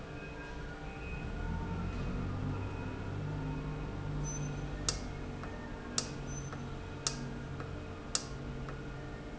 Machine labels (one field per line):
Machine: valve